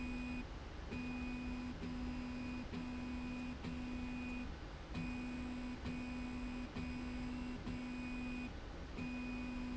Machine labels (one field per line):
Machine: slide rail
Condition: normal